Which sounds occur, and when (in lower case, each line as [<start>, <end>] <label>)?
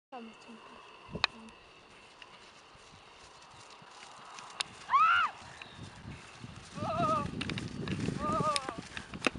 [0.11, 0.37] female speech
[0.12, 9.35] wind
[0.96, 1.58] female speech
[1.01, 1.14] wind noise (microphone)
[1.16, 1.25] tick
[1.80, 9.32] clip-clop
[4.52, 4.59] tick
[4.85, 5.36] screaming
[5.70, 5.88] wind noise (microphone)
[5.99, 6.16] wind noise (microphone)
[6.40, 9.35] wind noise (microphone)
[6.71, 7.36] human voice
[8.21, 8.64] human voice
[8.48, 8.56] tick
[9.18, 9.24] tick